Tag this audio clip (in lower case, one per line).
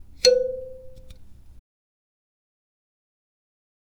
human voice
speech
male speech